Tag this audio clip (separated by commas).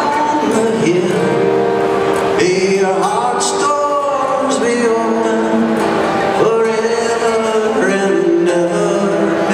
Music